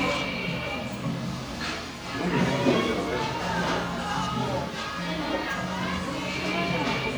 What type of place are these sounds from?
crowded indoor space